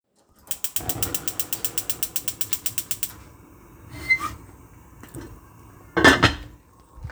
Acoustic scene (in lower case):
kitchen